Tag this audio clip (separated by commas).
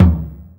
Music, Percussion, Bass drum, Musical instrument, Drum